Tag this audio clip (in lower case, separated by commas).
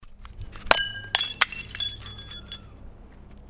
shatter, glass, crushing